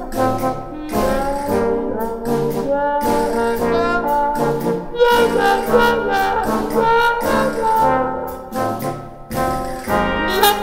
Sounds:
Trumpet, Music

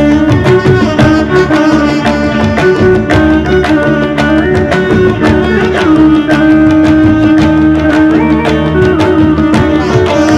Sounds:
Music, Classical music

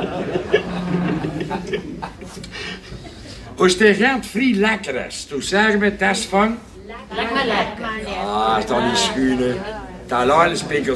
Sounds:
Speech

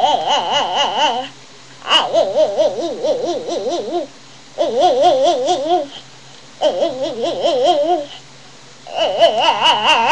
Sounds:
people babbling, Babbling

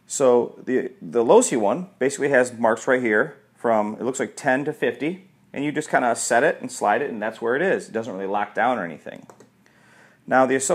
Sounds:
Speech

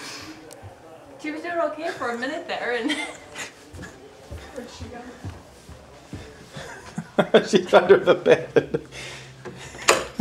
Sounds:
Speech

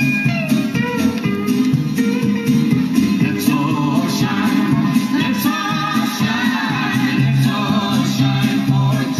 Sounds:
Music

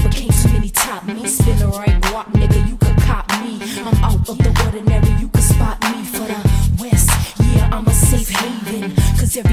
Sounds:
Pop music, Music

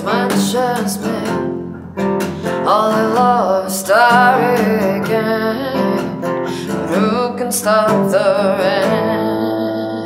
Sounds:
Music

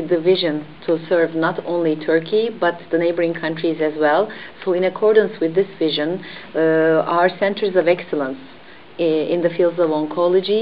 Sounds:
Speech

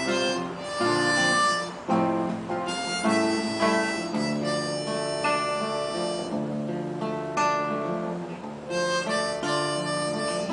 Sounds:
Music, Guitar, Musical instrument

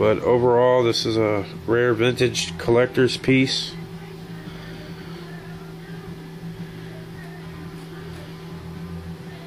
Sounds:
Speech, Music

